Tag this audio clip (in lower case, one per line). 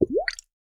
water
gurgling